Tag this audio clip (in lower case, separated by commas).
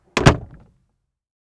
door, wood, slam, home sounds